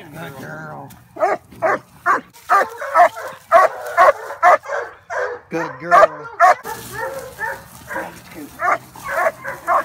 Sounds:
bow-wow, speech, canids, animal, dog

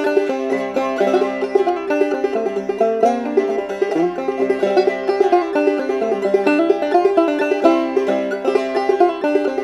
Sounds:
playing banjo

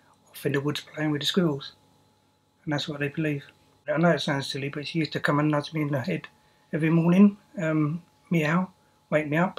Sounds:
meow, speech

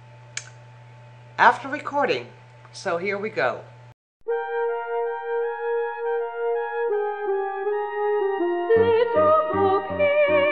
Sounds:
music, speech

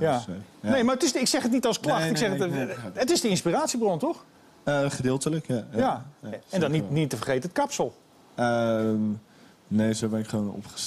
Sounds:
speech

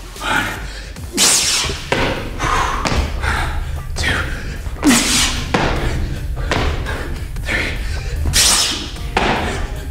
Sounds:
music, slam, speech

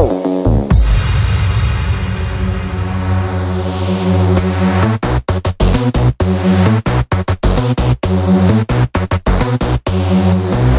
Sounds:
music

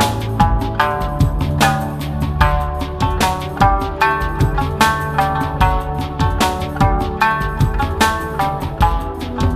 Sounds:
music

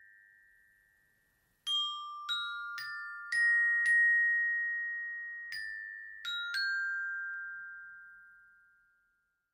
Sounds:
playing glockenspiel

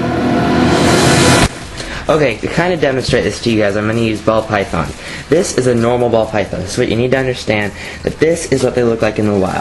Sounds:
inside a small room, speech

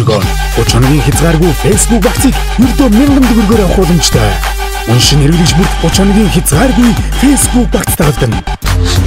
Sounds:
music, speech

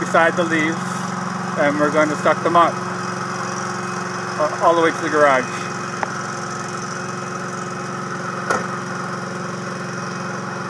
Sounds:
speech

